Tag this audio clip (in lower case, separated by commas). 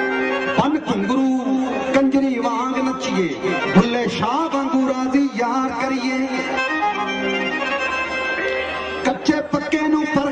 accordion, singing